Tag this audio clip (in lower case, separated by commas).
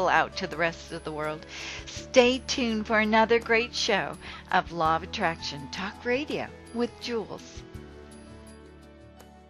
music, speech